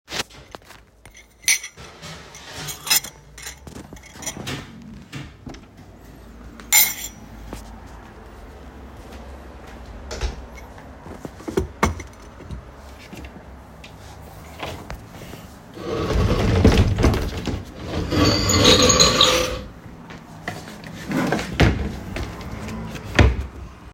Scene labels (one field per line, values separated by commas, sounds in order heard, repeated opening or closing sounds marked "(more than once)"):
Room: hallway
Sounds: cutlery and dishes, footsteps, door, wardrobe or drawer (more than once)